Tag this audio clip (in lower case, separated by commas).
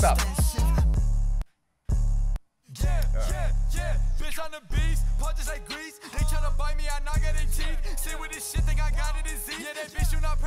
rapping